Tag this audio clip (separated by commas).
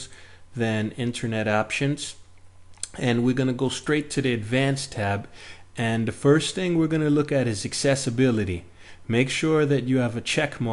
Speech